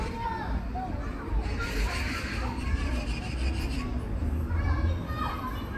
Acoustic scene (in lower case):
park